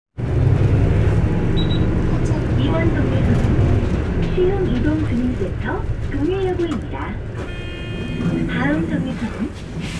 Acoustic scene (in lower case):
bus